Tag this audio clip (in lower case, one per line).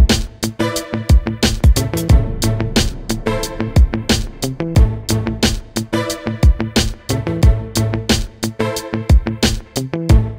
music